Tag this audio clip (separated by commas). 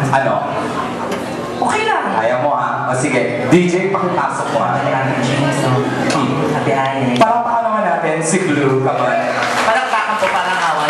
Speech